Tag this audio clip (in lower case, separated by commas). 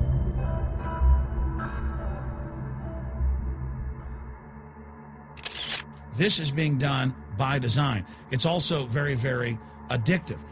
speech, music